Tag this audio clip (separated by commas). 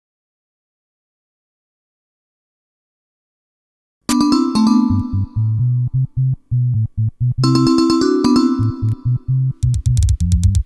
Music